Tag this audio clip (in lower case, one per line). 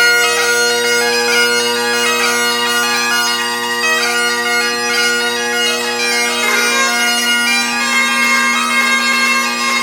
bagpipes